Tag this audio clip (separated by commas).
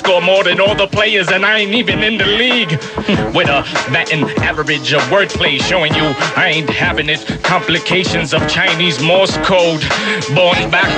Music